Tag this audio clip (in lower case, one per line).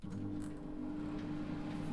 engine
microwave oven
domestic sounds